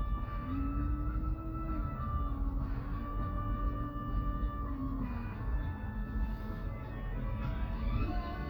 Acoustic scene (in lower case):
car